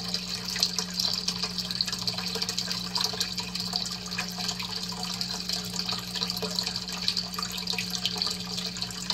Water running